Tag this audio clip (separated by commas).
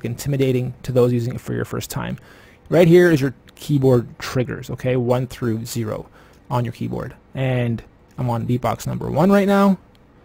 Speech